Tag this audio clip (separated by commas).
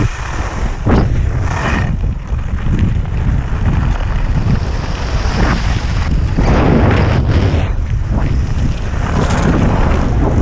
skiing